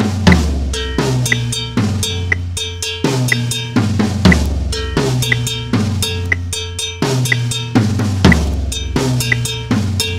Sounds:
Snare drum, Drum kit, Drum, Bass drum, Rimshot, Percussion

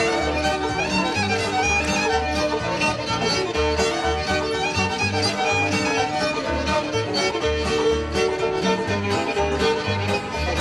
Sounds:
Music

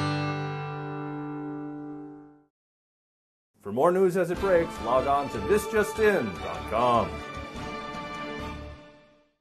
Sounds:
Music, Speech

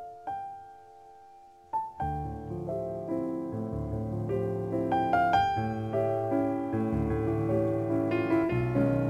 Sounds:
Musical instrument, Keyboard (musical), Music, Piano

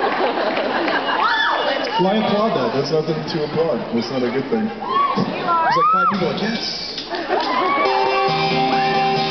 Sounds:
Music, Speech

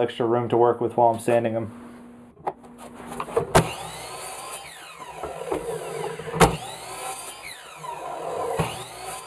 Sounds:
Speech

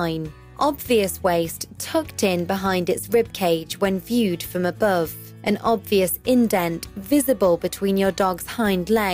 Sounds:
Speech

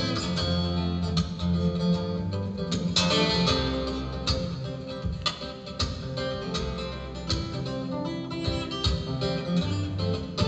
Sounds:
Guitar, Acoustic guitar, Strum, Plucked string instrument, Musical instrument, Music

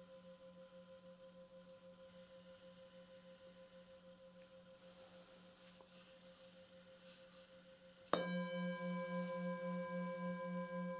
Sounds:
singing bowl

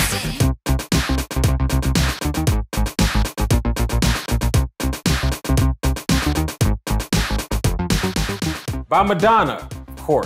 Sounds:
playing synthesizer

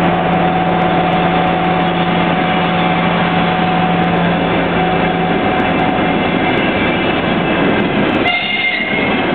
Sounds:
Train horn, Train, Railroad car, Rail transport

